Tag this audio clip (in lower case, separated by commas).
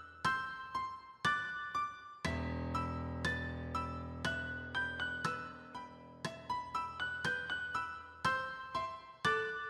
music